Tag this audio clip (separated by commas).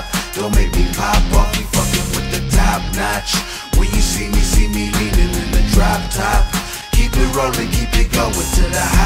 Music